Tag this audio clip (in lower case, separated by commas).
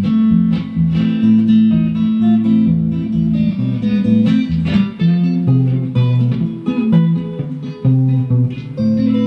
guitar, music, musical instrument, plucked string instrument, acoustic guitar